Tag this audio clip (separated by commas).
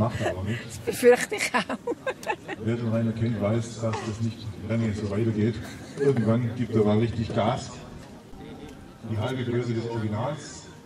Speech